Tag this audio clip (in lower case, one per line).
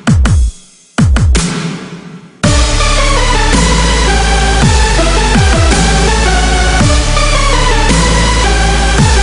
music